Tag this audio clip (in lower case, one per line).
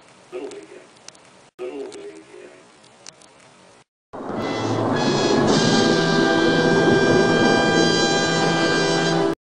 music
speech